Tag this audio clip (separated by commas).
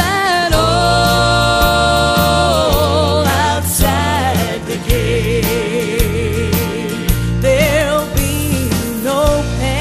Singing, Music